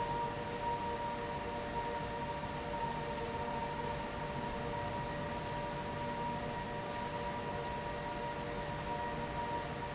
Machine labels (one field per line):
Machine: fan